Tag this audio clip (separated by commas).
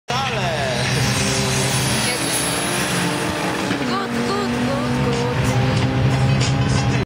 Speech, Car, Medium engine (mid frequency), vroom, Vehicle